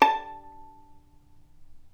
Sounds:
musical instrument, bowed string instrument, music

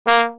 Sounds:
music, musical instrument, brass instrument

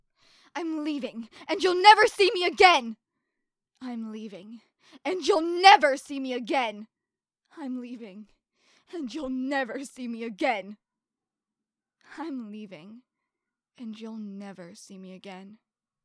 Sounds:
yell, shout, human voice

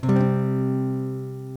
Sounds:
strum, acoustic guitar, music, plucked string instrument, musical instrument, guitar

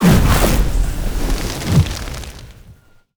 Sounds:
fire, crackle

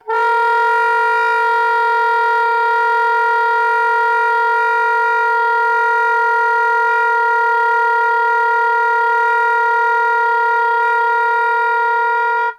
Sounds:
musical instrument, woodwind instrument, music

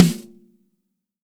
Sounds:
music, musical instrument, drum, snare drum, percussion

